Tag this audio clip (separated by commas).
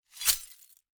Glass